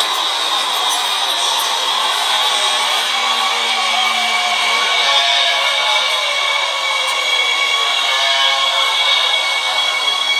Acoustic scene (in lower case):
subway station